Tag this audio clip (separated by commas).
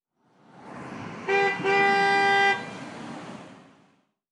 roadway noise, Vehicle horn, Car, Vehicle, Motor vehicle (road), Alarm